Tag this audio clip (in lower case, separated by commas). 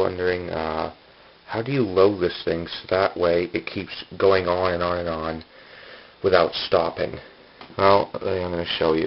speech